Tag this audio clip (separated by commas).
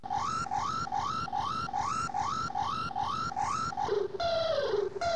Alarm